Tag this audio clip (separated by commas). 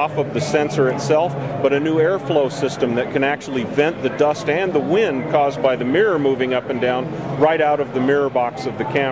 Speech